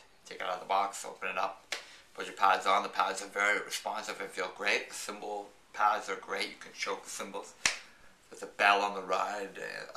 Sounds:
Speech

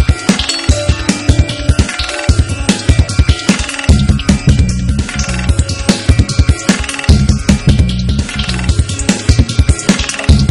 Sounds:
Music

